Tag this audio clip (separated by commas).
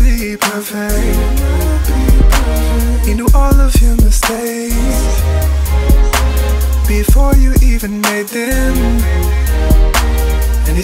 Gospel music, Music